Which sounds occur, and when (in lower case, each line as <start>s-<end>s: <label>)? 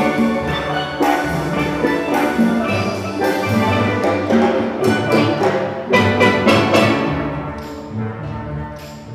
0.0s-9.1s: music